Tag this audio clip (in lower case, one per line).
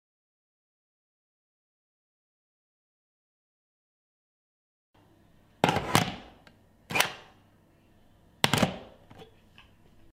alarm
telephone